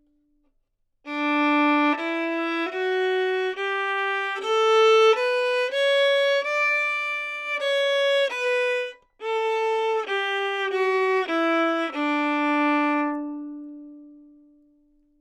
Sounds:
bowed string instrument, musical instrument, music

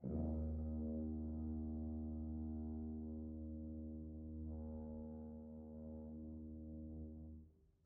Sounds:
brass instrument, music, musical instrument

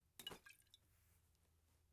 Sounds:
liquid

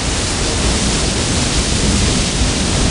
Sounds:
water

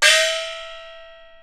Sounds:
music, musical instrument, gong, percussion

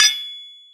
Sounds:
tools

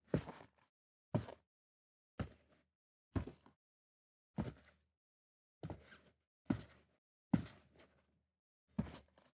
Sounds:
walk

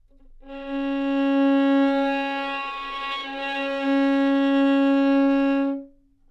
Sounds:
musical instrument, music, bowed string instrument

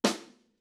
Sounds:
music, percussion, snare drum, drum, musical instrument

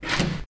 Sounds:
domestic sounds, door

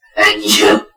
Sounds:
sneeze, human voice, respiratory sounds

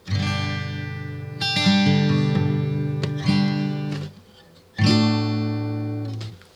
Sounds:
musical instrument, plucked string instrument, guitar, music, acoustic guitar

